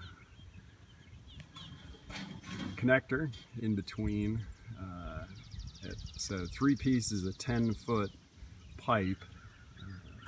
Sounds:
Bird, Speech

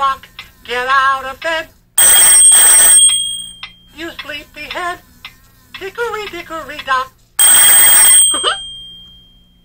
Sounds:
Speech, Tick-tock, Buzzer, Tick

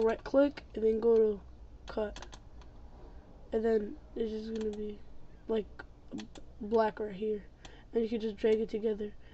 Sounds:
Typing

